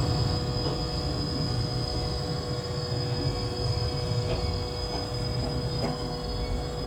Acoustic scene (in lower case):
subway train